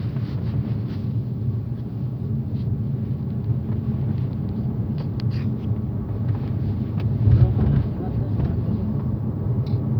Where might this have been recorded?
in a car